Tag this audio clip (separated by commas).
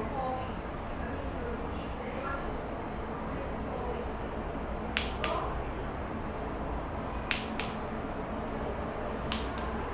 Speech